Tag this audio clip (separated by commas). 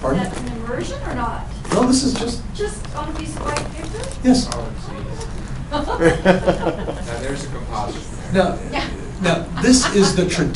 Speech